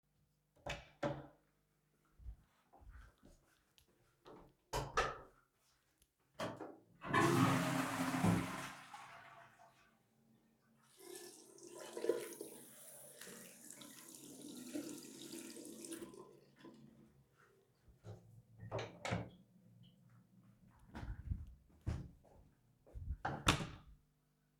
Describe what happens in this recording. I opened the door and entered the bathroom, flushed the toilet and then washed my hands under the sink. Finally, I opened the bathroom door to leave.